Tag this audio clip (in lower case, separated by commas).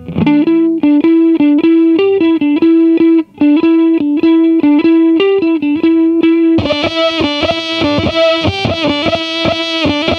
distortion, music